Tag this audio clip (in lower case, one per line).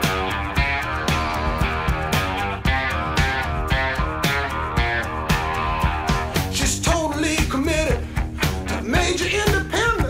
plucked string instrument
electric guitar
musical instrument
music
guitar